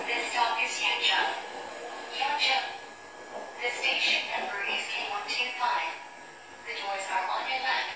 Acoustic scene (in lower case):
subway train